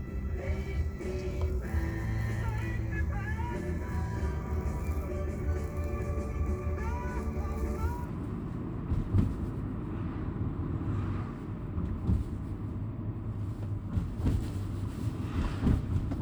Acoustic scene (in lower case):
car